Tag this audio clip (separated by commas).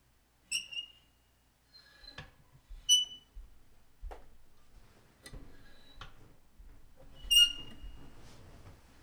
Screech